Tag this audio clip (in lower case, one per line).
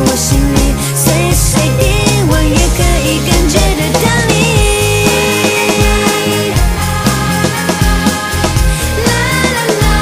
music